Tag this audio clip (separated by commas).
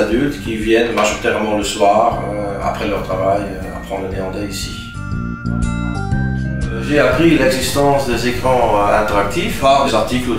Music, Speech